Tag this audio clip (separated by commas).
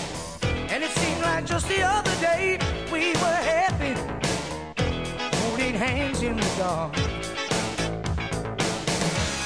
Music